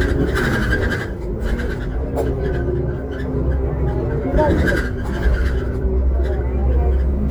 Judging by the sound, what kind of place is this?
bus